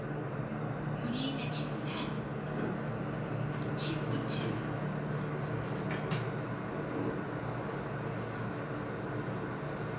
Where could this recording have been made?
in an elevator